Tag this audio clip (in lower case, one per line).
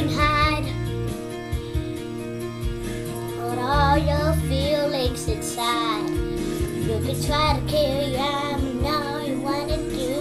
music
child singing